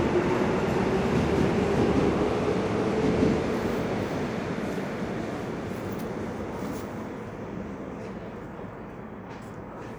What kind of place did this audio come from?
subway station